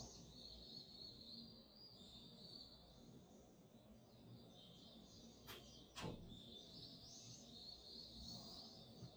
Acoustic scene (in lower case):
park